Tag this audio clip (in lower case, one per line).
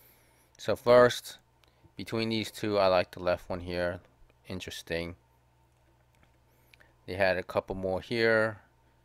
speech